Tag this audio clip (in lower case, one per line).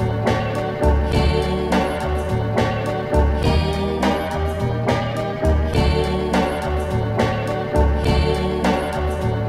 music
soundtrack music